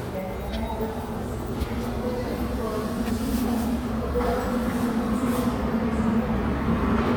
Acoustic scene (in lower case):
subway station